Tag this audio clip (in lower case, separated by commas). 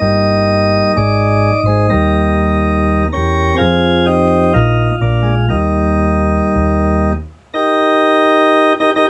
hammond organ, organ